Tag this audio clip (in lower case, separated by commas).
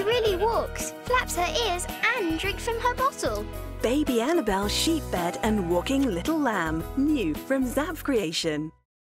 music, speech